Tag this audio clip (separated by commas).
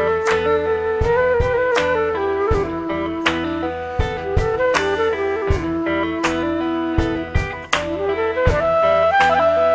Music